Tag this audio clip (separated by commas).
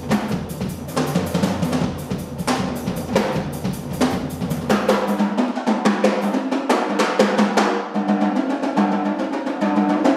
Drum, playing drum kit, Music, inside a large room or hall, Drum kit, Musical instrument